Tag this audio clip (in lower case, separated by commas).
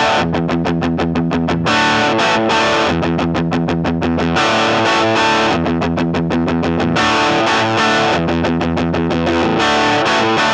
music, musical instrument, acoustic guitar, plucked string instrument, guitar, strum